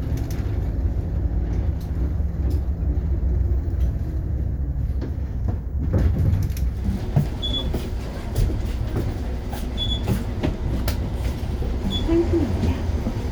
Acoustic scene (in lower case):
bus